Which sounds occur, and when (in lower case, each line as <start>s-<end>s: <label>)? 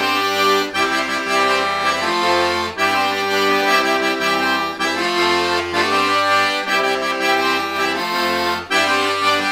0.0s-9.5s: music